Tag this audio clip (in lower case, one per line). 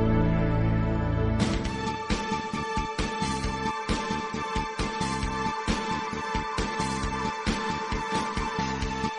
music